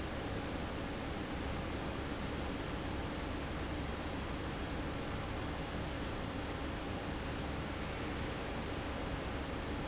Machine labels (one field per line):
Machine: fan